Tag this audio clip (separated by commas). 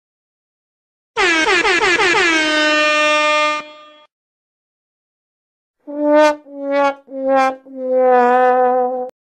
Music